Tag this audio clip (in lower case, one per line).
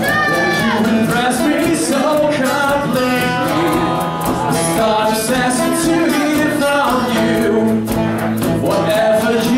music
speech